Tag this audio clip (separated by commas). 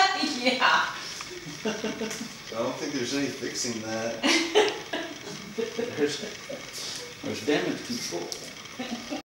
Speech